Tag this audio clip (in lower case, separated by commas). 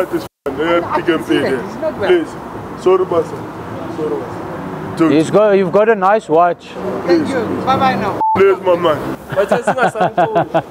car passing by, speech